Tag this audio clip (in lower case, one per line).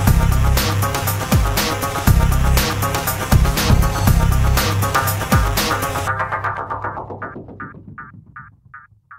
music